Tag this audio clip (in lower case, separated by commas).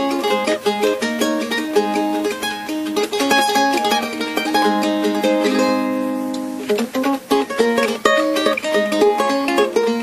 strum, acoustic guitar, music, plucked string instrument, guitar, musical instrument